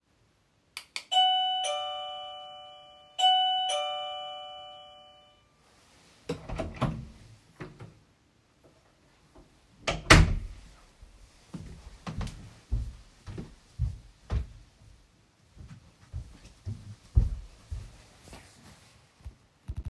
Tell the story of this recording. The phone is placed on a table in the bedroom. The doorbell rings and I walk towards the door. I open and close the door and walk away again, creating audible footsteps.